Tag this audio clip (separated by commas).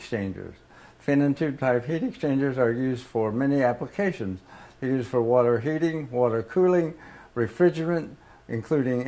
Speech